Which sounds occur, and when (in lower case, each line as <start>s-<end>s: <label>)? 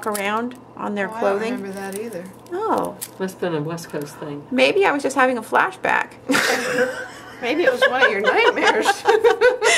0.0s-0.5s: female speech
0.0s-9.7s: conversation
0.0s-9.7s: mechanisms
0.1s-0.1s: generic impact sounds
0.7s-2.3s: female speech
1.6s-2.5s: crinkling
2.4s-2.9s: female speech
2.7s-2.8s: generic impact sounds
3.0s-3.2s: crinkling
3.2s-4.4s: female speech
3.7s-4.4s: surface contact
3.8s-4.0s: generic impact sounds
4.5s-6.0s: female speech
6.3s-9.6s: giggle
7.4s-9.0s: female speech
9.6s-9.7s: gasp